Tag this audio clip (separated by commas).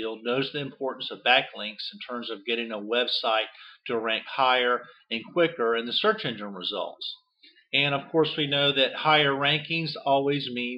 Speech